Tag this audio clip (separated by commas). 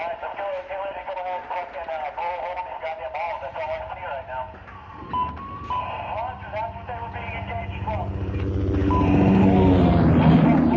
Speech